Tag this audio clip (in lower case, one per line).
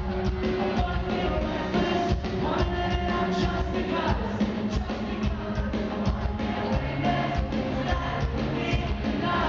singing
music